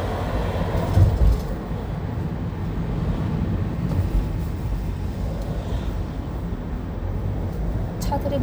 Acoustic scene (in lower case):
car